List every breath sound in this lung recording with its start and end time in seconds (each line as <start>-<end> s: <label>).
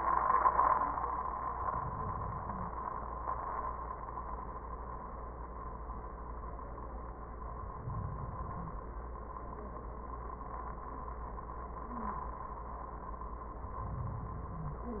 1.46-2.85 s: inhalation
7.55-8.94 s: inhalation
13.54-15.00 s: inhalation